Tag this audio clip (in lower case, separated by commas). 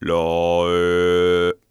human voice, male singing, singing